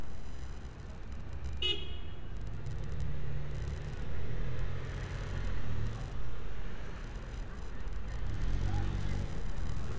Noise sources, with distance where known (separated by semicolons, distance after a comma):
medium-sounding engine, near; car horn, near